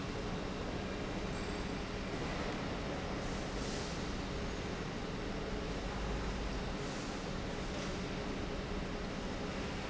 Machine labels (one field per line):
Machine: pump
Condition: normal